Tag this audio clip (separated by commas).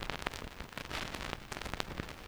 Crackle